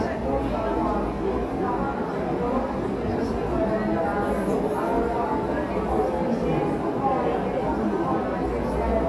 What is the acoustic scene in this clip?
crowded indoor space